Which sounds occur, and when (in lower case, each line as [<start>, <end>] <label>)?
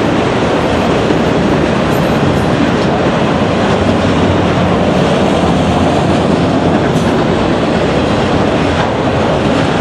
[0.00, 9.80] clickety-clack
[0.00, 9.80] train
[8.69, 8.81] generic impact sounds